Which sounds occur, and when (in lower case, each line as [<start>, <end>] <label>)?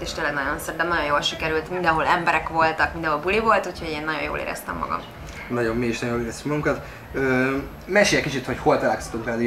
[0.00, 5.07] woman speaking
[0.00, 9.45] conversation
[0.00, 9.45] mechanisms
[0.00, 9.45] music
[5.20, 5.39] breathing
[5.45, 6.76] man speaking
[6.81, 7.09] breathing
[7.16, 7.65] man speaking
[7.83, 9.45] man speaking